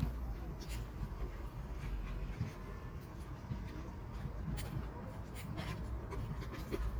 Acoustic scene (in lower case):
residential area